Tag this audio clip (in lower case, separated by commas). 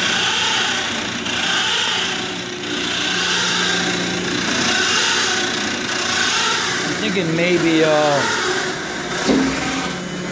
power tool, noise, speech